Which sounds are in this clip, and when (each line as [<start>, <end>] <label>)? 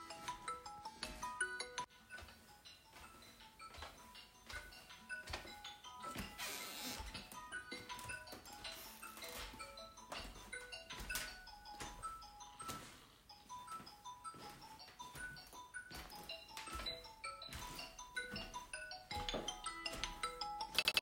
[0.05, 21.01] phone ringing
[3.47, 21.01] footsteps